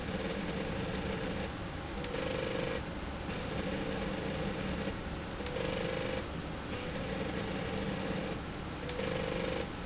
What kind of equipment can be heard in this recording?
slide rail